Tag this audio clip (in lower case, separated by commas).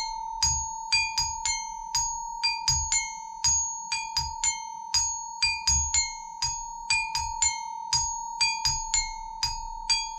playing glockenspiel